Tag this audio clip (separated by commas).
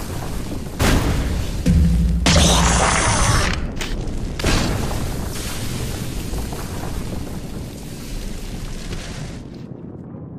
Music